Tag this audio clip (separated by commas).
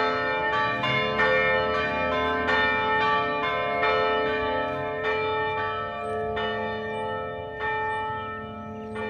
church bell ringing